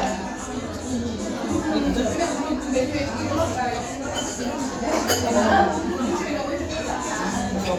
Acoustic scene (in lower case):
restaurant